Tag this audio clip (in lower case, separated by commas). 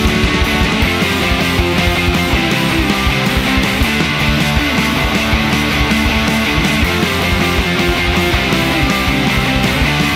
music